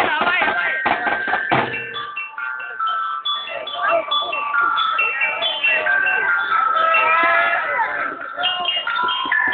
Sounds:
Music, Percussion, Speech

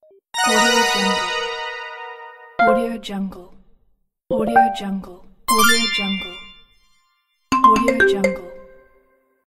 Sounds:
Music, Speech

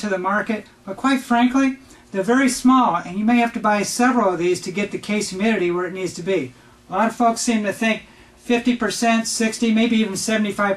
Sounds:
Speech

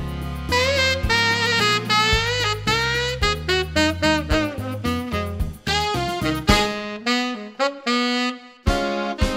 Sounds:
playing saxophone

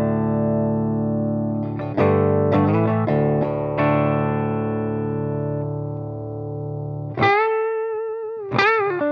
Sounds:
Music, Distortion

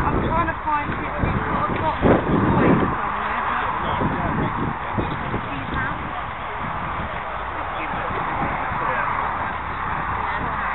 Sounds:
Speech

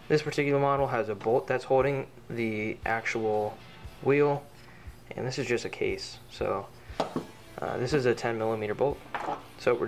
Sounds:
Speech

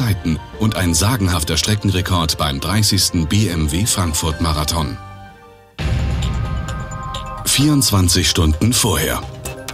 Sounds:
Music, Speech

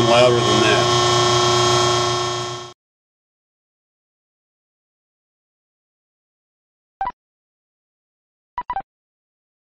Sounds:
Speech

